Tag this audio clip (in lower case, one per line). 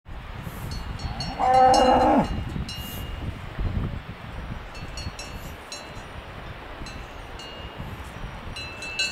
cattle